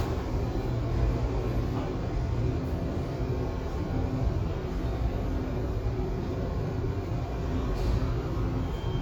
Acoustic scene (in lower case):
subway station